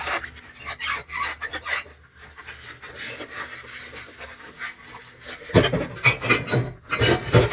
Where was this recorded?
in a kitchen